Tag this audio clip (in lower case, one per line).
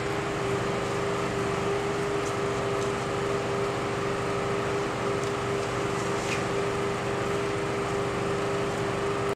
microwave oven